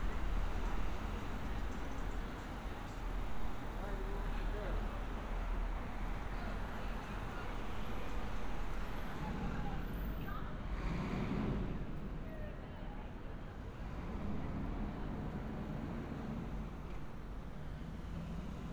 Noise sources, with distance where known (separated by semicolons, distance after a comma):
engine of unclear size; unidentified human voice